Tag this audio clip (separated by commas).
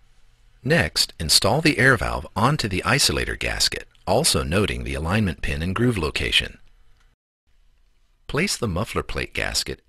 Speech